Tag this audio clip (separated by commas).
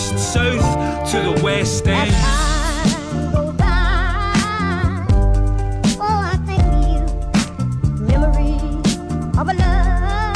Music, Rapping, Hip hop music